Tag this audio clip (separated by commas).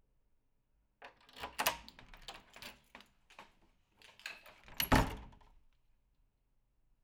Door, Slam, home sounds